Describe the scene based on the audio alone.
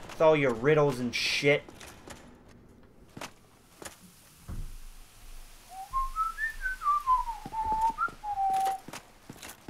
A person talks about making riddles as a whistling noise is heard